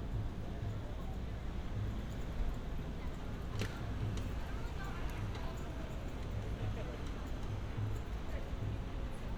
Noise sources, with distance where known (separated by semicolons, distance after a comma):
person or small group talking, far